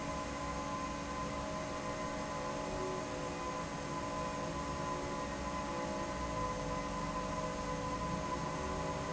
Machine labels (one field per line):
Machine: fan